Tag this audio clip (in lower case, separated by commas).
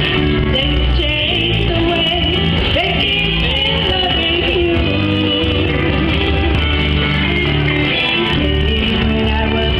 female singing, music